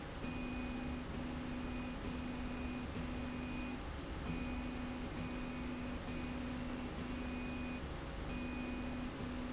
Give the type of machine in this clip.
slide rail